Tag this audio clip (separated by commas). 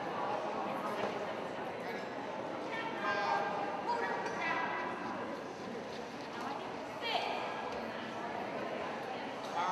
Speech